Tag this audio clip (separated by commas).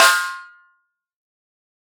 Drum, Music, Musical instrument, Percussion, Snare drum